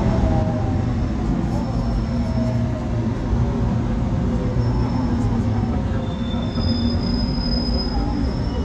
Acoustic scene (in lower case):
subway train